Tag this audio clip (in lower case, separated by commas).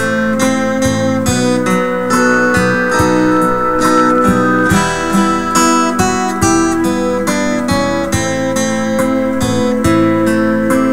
music, folk music